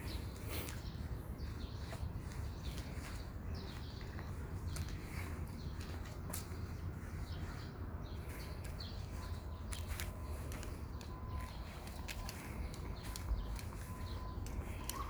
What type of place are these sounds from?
park